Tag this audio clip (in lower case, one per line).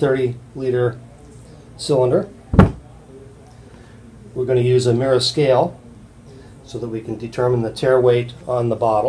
speech